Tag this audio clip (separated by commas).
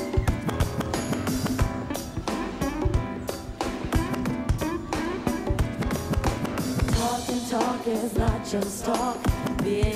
Music